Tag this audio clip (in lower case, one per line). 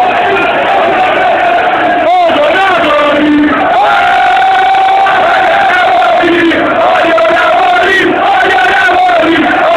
speech